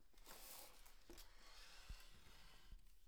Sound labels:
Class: furniture moving; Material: wooden; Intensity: low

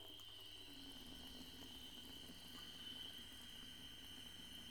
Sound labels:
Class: water tap; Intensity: low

